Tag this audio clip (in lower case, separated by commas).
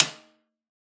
percussion, snare drum, drum, music, musical instrument